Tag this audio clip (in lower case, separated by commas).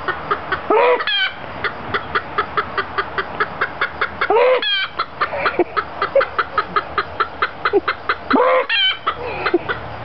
animal, chicken